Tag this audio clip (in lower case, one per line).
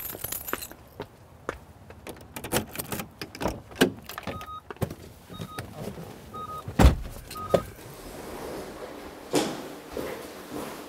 sliding door